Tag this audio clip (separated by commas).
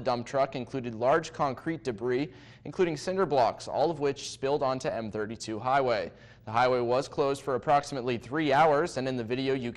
Speech